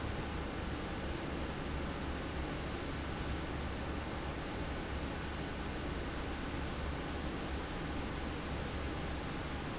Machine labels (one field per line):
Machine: fan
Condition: abnormal